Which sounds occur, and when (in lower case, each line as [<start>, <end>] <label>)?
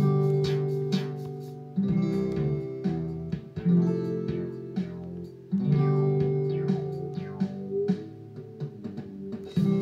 [0.00, 9.81] music